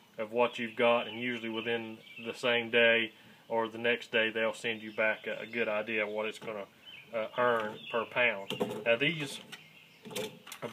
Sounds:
Speech, inside a small room

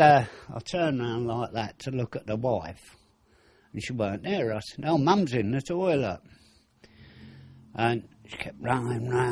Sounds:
Speech

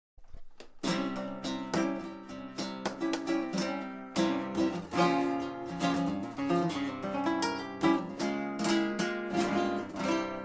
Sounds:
Guitar, Music, Zither, Plucked string instrument, Acoustic guitar, Flamenco, Musical instrument

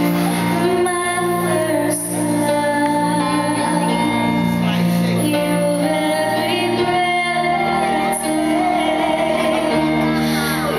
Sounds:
Female singing, Music

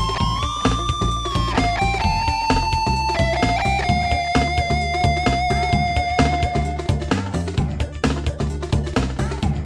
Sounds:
Music, Electric guitar, Strum, Guitar, Musical instrument, Plucked string instrument

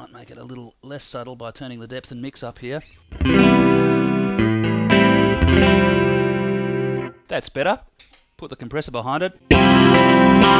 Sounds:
Guitar, Musical instrument, Effects unit, Plucked string instrument, inside a small room, Distortion, Music, Speech

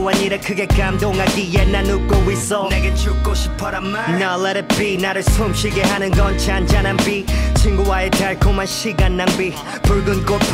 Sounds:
Music

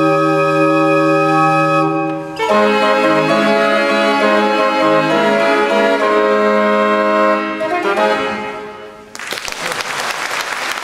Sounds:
Organ, Hammond organ

